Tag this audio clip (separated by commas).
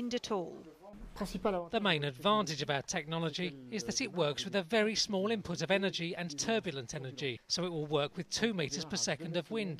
Speech